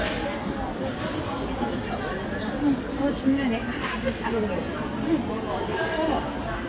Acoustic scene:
crowded indoor space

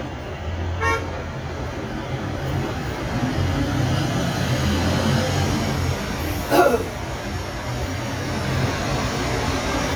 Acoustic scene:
street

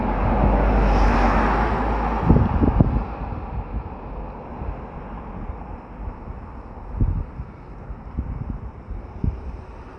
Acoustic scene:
street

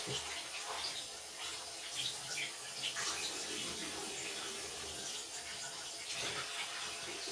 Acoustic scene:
restroom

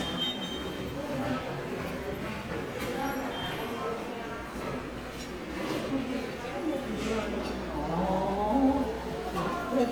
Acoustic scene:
subway station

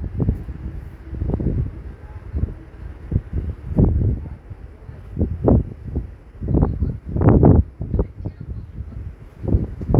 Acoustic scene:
street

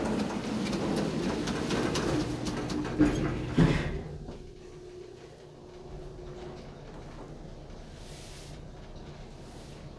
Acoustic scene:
elevator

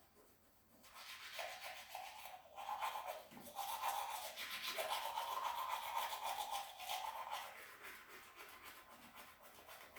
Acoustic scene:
restroom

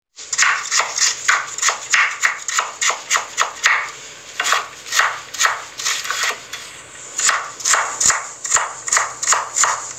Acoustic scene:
kitchen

